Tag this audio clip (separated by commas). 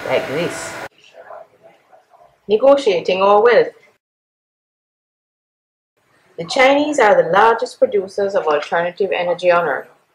Speech